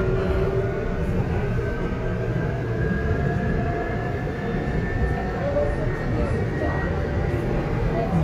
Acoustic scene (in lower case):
subway train